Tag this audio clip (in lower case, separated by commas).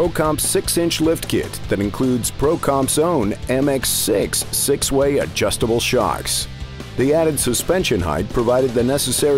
music, speech